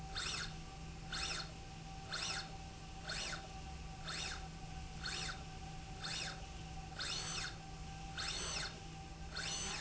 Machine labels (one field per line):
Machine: slide rail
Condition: normal